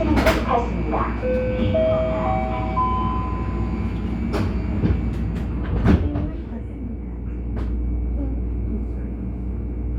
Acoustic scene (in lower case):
subway train